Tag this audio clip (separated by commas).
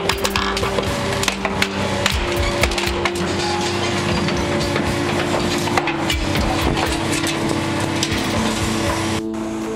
Vehicle, Music, outside, rural or natural